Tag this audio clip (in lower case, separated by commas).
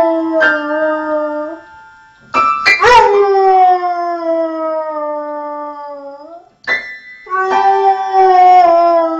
yip, music, whimper (dog)